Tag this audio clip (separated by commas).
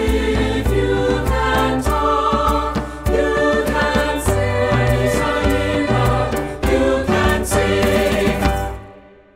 Singing, Music